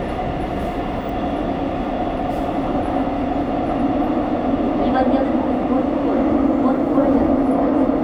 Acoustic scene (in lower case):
subway train